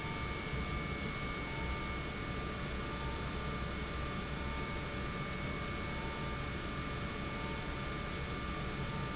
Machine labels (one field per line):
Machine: pump